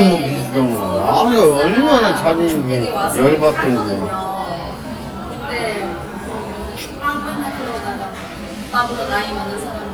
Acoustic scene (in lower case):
cafe